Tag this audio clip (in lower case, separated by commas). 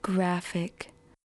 human voice, woman speaking, speech